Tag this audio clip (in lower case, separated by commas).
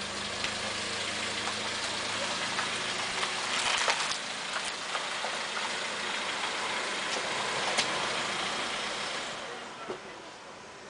vehicle, car